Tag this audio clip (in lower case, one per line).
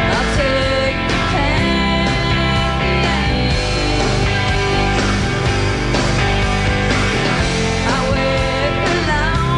music